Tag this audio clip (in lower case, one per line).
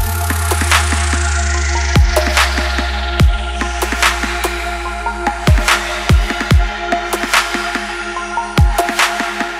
music